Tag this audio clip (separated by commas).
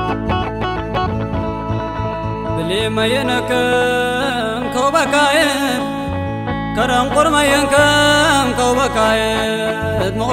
Music